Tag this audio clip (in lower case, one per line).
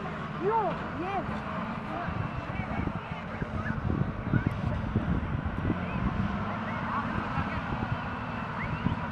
vehicle
truck
speech